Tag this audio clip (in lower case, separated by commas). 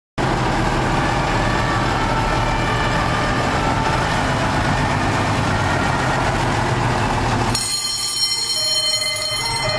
truck, motor vehicle (road), fire engine, vehicle, emergency vehicle